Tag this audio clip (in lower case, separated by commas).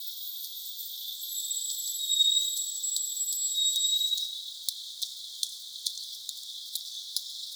animal, wild animals, bird call, bird